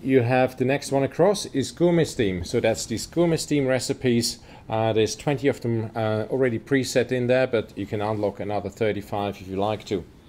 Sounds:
speech

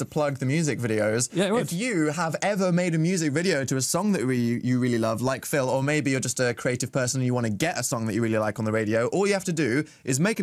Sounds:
speech

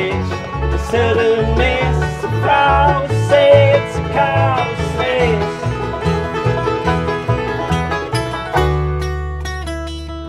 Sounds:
music
mandolin
plucked string instrument
country
musical instrument
bluegrass
guitar

